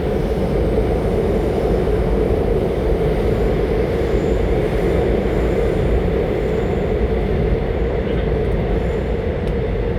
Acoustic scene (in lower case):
subway train